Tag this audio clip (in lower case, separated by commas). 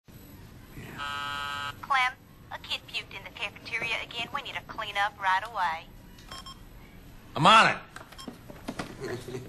inside a large room or hall, speech, telephone dialing